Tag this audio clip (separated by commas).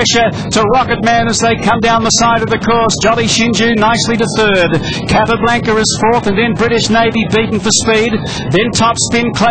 Speech